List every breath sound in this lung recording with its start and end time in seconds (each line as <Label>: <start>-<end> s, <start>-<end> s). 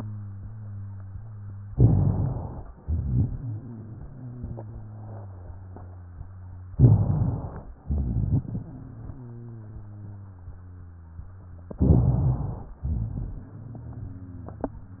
Inhalation: 1.63-2.68 s, 6.73-7.70 s, 11.77-12.74 s
Exhalation: 2.80-6.67 s, 7.87-11.69 s, 12.88-15.00 s
Wheeze: 3.41-6.67 s, 8.46-11.68 s, 13.39-15.00 s
Rhonchi: 1.63-2.68 s, 2.85-3.28 s, 6.73-7.70 s, 7.87-8.46 s, 11.77-12.74 s, 12.80-13.32 s